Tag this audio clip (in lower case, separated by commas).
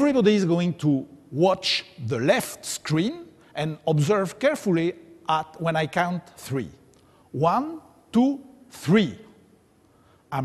speech